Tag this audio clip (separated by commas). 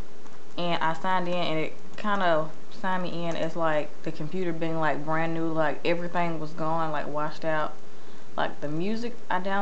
Speech